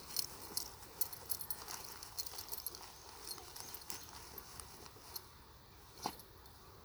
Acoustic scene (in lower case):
park